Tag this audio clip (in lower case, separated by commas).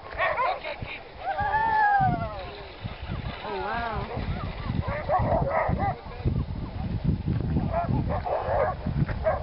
dog bow-wow, bow-wow, speech